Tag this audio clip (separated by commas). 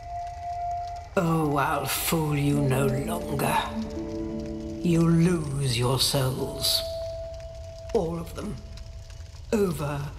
Speech, Music